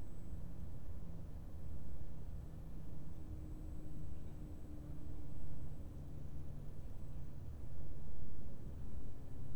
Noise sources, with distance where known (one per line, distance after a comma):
background noise